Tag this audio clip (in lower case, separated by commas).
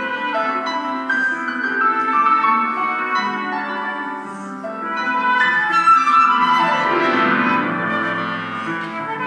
wind instrument, flute